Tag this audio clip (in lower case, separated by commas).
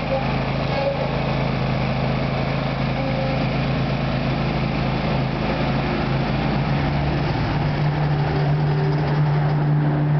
lawn mower, vehicle, outside, urban or man-made, lawn mowing